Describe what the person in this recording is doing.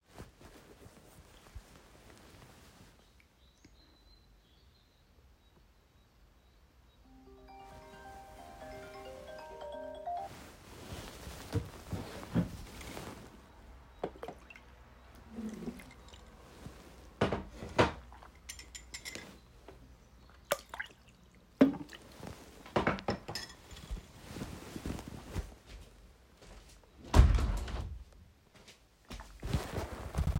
An alarm went off and I got out of bed. I poured water into a glass, then walked to the window and closed it.